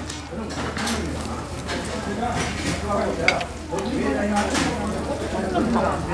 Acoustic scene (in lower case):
restaurant